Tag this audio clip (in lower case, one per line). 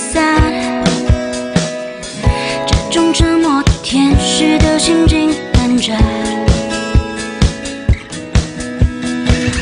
music